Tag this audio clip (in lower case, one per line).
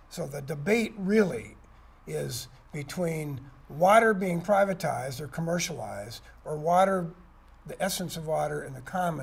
speech